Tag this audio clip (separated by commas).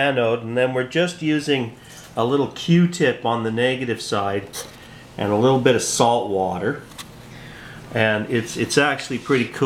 Speech